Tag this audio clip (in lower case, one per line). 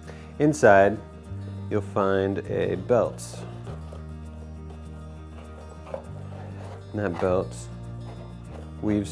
music
speech